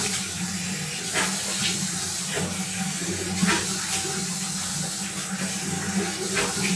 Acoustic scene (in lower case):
restroom